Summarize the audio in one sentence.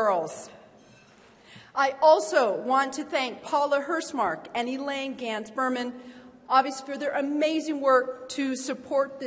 A girl speaking followed by a monologue